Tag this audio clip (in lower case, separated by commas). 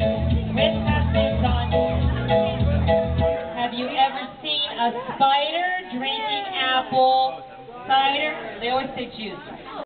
speech, music